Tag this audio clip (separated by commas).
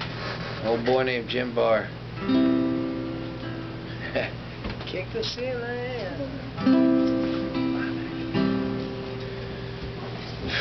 Speech, Guitar, Plucked string instrument, Strum, Music, Musical instrument